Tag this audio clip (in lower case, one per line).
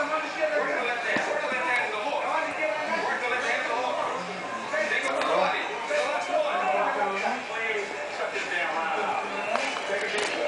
speech